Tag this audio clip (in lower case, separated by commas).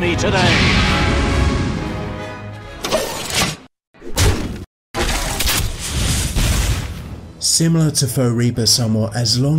speech, music